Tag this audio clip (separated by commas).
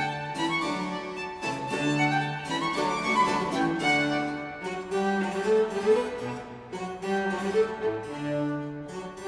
Music